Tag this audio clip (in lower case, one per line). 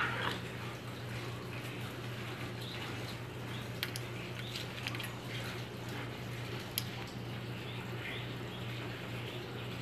chimpanzee pant-hooting